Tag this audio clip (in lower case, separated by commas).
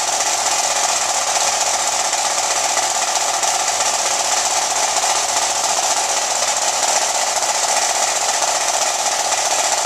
musical instrument, drum, drum kit, music